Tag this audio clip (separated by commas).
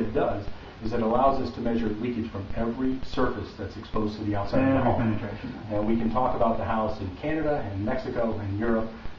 Speech